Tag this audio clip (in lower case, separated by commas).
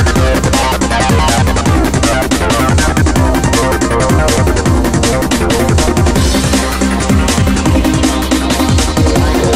theme music, music